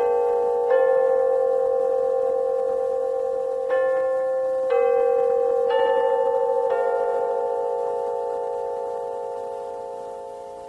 Clock bell ringing